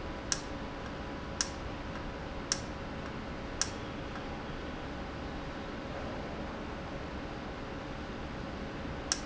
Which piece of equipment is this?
valve